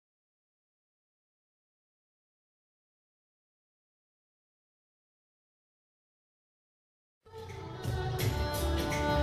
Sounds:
music
silence

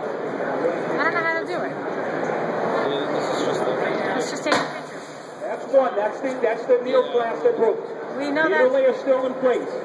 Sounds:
speech

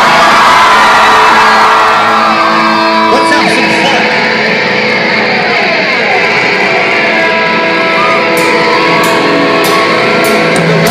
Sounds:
music
speech

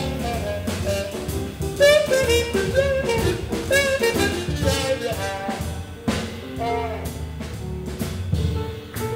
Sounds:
trombone
jazz
music
piano
musical instrument
double bass

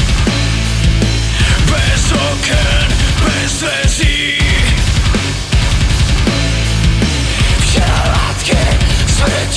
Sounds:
funk
music
pop music

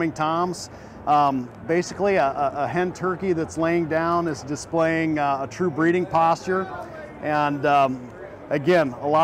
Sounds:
speech

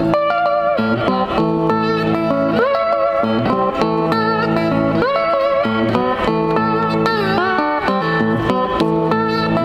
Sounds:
slide guitar

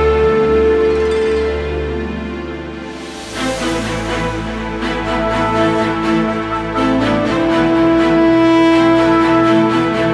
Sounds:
music

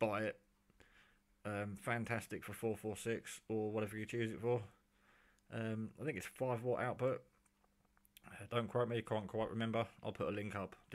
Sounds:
inside a small room
speech

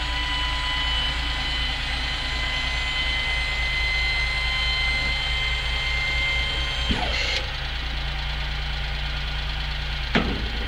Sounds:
vehicle

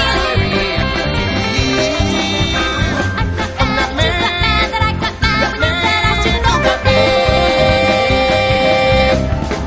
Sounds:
funny music
music

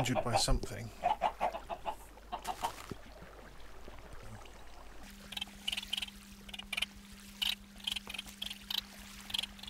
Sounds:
speech
rooster

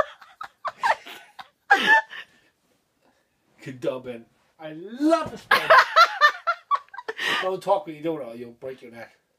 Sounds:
speech

